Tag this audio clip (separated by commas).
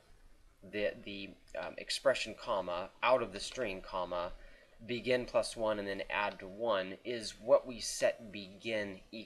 Speech